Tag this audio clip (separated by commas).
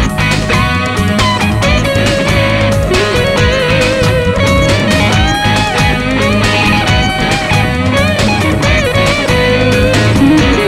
Music, Sampler